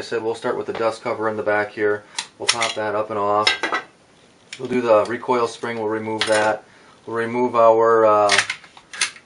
A man speaks interspersed with a metallic scraping sound